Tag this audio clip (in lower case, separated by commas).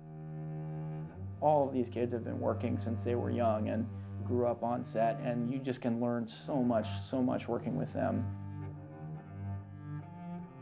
speech, music